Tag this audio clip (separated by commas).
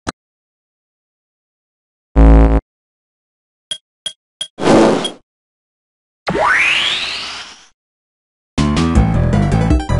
Music